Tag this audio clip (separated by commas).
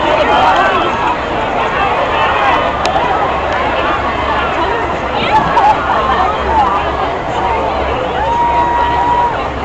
Run, Speech